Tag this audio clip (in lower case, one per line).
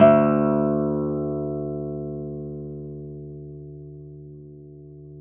musical instrument
guitar
acoustic guitar
plucked string instrument
music